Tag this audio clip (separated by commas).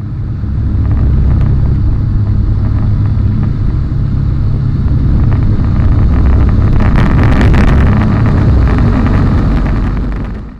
Aircraft, outside, rural or natural, Vehicle